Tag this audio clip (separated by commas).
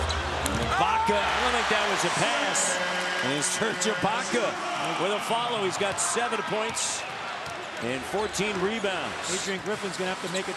basketball bounce